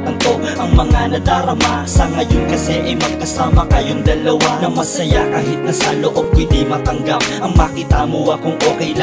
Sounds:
Music, Tender music

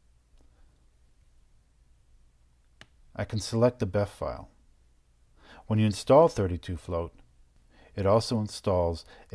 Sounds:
inside a small room, Speech

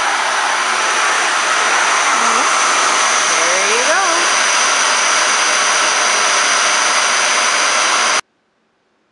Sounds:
inside a small room, Speech, Vacuum cleaner

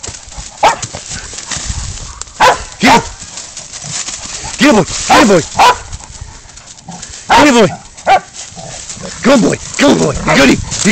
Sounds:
dog baying

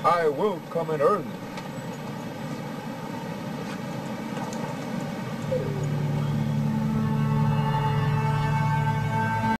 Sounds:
Music, Speech

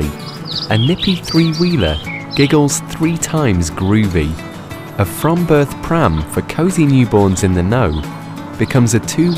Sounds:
Music, Speech

